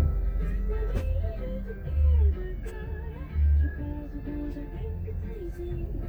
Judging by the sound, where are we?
in a car